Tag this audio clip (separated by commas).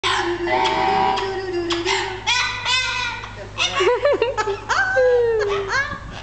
Speech, Female singing